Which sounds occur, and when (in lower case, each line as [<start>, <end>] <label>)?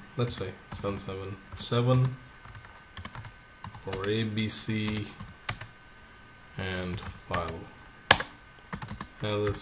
[0.00, 9.61] mechanisms
[0.11, 0.49] man speaking
[0.13, 0.40] computer keyboard
[0.68, 1.32] man speaking
[0.69, 0.92] computer keyboard
[1.45, 2.15] man speaking
[1.47, 1.63] computer keyboard
[1.85, 2.15] computer keyboard
[2.43, 2.71] computer keyboard
[2.89, 3.25] computer keyboard
[3.52, 3.65] computer keyboard
[3.79, 5.21] man speaking
[3.84, 4.12] computer keyboard
[4.77, 5.20] computer keyboard
[5.37, 5.60] computer keyboard
[6.51, 7.11] man speaking
[6.83, 7.05] computer keyboard
[7.27, 7.55] computer keyboard
[7.28, 7.64] man speaking
[8.07, 8.28] computer keyboard
[8.69, 8.99] computer keyboard
[9.12, 9.61] man speaking
[9.39, 9.61] computer keyboard